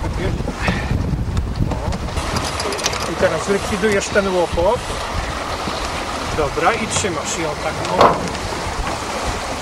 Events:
[0.00, 0.39] male speech
[0.00, 2.64] wind noise (microphone)
[0.00, 9.61] surf
[0.00, 9.61] wind
[0.57, 0.72] generic impact sounds
[0.68, 0.88] breathing
[1.33, 1.78] generic impact sounds
[1.64, 2.04] male speech
[1.88, 1.98] generic impact sounds
[2.29, 3.19] pulleys
[3.08, 4.83] male speech
[3.19, 5.59] wind noise (microphone)
[3.88, 3.98] generic impact sounds
[6.38, 8.22] male speech
[6.41, 7.05] wind noise (microphone)
[6.69, 6.76] generic impact sounds
[6.94, 7.02] generic impact sounds
[7.81, 8.37] generic impact sounds
[8.28, 9.61] wind noise (microphone)
[8.83, 8.96] generic impact sounds

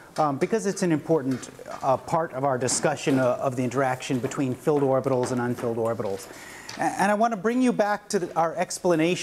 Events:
[0.00, 9.22] background noise
[0.13, 1.45] man speaking
[1.40, 1.88] generic impact sounds
[1.78, 6.21] man speaking
[2.63, 3.20] generic impact sounds
[4.15, 5.30] generic impact sounds
[5.58, 5.69] generic impact sounds
[6.01, 6.26] generic impact sounds
[6.21, 6.71] breathing
[6.73, 6.90] generic impact sounds
[6.73, 9.22] man speaking

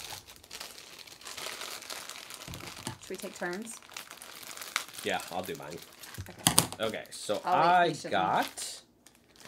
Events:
[0.00, 0.14] generic impact sounds
[0.00, 6.40] crinkling
[0.00, 9.45] mechanisms
[2.42, 2.94] generic impact sounds
[3.08, 9.45] conversation
[3.09, 3.72] female speech
[5.01, 5.76] man speaking
[6.11, 6.73] generic impact sounds
[6.13, 6.42] female speech
[6.75, 8.86] man speaking
[6.76, 7.58] crinkling
[7.44, 8.50] female speech
[8.26, 8.85] crinkling

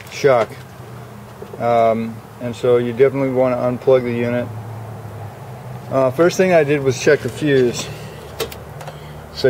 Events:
[0.00, 0.45] man speaking
[0.00, 9.45] motor vehicle (road)
[0.00, 9.45] wind
[0.33, 0.63] generic impact sounds
[1.36, 1.58] generic impact sounds
[1.49, 2.12] man speaking
[2.33, 4.52] man speaking
[5.88, 7.98] man speaking
[7.35, 7.95] generic impact sounds
[8.30, 8.53] generic impact sounds
[8.68, 8.95] generic impact sounds

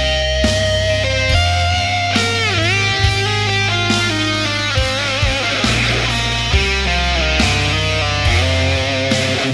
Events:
[0.00, 9.53] music

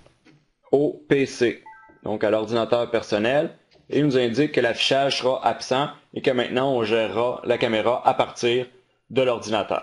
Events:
[0.00, 9.82] background noise
[0.17, 0.38] generic impact sounds
[0.68, 1.59] man speaking
[1.61, 2.04] music
[2.01, 3.50] man speaking
[3.65, 3.84] generic impact sounds
[3.87, 5.92] man speaking
[6.11, 8.60] man speaking
[9.10, 9.82] man speaking

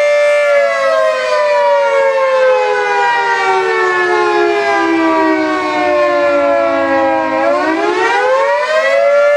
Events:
[0.00, 9.35] civil defense siren

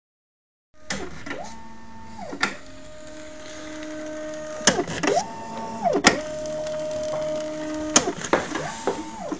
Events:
[0.71, 9.35] printer

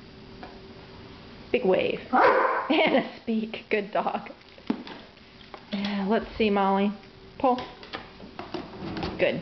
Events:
[0.00, 9.41] mechanisms
[0.34, 0.49] generic impact sounds
[1.46, 2.00] female speech
[2.08, 2.60] bark
[2.67, 3.17] laughter
[3.21, 4.30] female speech
[3.90, 4.34] laughter
[4.66, 4.96] generic impact sounds
[5.44, 5.94] generic impact sounds
[5.65, 6.97] female speech
[7.35, 7.79] female speech
[7.50, 8.02] generic impact sounds
[8.35, 9.14] drawer open or close
[9.16, 9.39] female speech

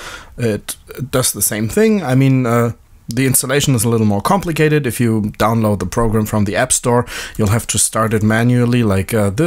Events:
[0.00, 9.45] background noise
[0.35, 0.66] male speech
[1.07, 2.75] male speech
[3.10, 7.06] male speech
[7.02, 7.57] clicking
[7.37, 9.45] male speech
[8.07, 8.65] clicking

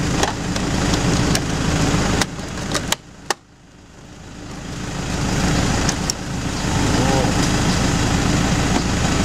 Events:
[0.00, 9.24] truck
[6.01, 6.12] generic impact sounds
[6.50, 8.76] electric windows
[6.89, 7.43] speech

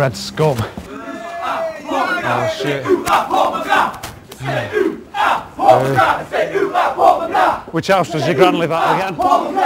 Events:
[0.00, 0.60] motor vehicle (road)
[0.00, 0.70] male speech
[0.00, 9.08] conversation
[0.00, 9.65] background noise
[0.58, 0.94] breathing
[0.65, 0.87] walk
[0.81, 1.57] battle cry
[0.87, 2.88] male speech
[1.86, 3.96] battle cry
[2.96, 3.14] walk
[3.93, 4.10] walk
[4.21, 4.44] walk
[4.29, 4.92] battle cry
[4.34, 4.78] human voice
[5.11, 5.40] battle cry
[5.57, 6.68] male speech
[5.59, 7.57] battle cry
[7.59, 9.22] male speech
[7.98, 9.65] battle cry
[9.09, 9.33] generic impact sounds

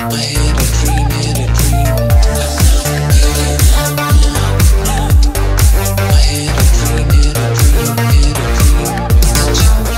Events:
[0.00, 9.95] music
[0.05, 1.62] male singing
[2.42, 4.76] male singing
[5.95, 8.92] male singing
[9.71, 9.95] male singing

